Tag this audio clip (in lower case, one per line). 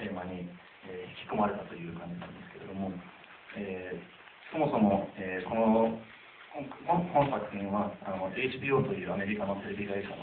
speech